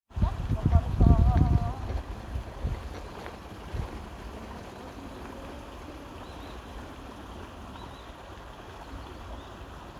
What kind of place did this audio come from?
park